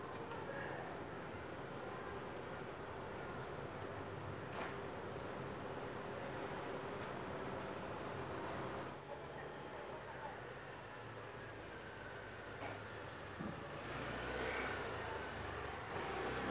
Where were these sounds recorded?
in a residential area